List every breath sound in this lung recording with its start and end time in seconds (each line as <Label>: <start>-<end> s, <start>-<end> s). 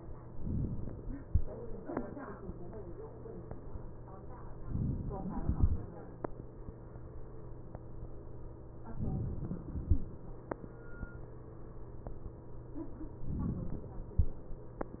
Inhalation: 4.67-5.46 s, 8.96-9.85 s, 13.26-14.15 s
Exhalation: 5.46-6.57 s